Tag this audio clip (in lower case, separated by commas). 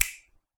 hands, finger snapping